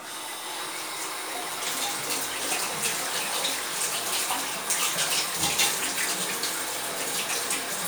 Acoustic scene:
restroom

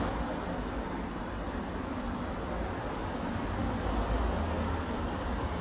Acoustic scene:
residential area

